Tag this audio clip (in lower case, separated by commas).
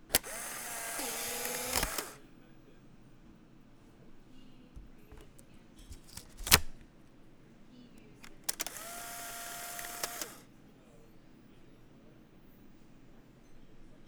camera, mechanisms